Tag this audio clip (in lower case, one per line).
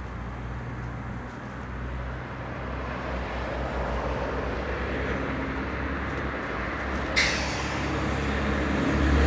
bus
vehicle